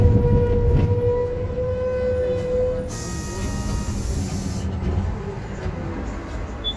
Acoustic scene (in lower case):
bus